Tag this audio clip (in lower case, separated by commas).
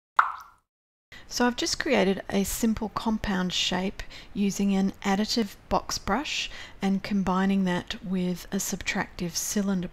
speech, plop